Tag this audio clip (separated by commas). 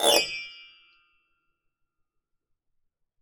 Keyboard (musical), Piano, Musical instrument, Music